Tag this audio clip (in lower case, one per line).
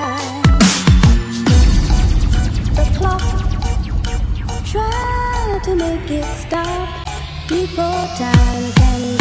electronic music
music
dubstep